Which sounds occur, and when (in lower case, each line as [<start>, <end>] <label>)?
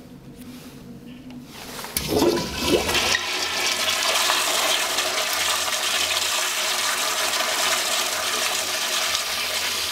[0.00, 9.91] mechanisms
[1.03, 1.22] generic impact sounds
[1.27, 1.36] tick
[1.52, 9.91] toilet flush